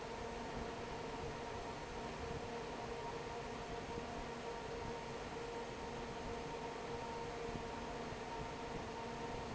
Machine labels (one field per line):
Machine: fan